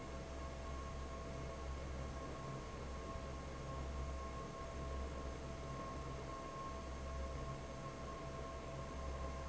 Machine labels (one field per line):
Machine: fan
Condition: normal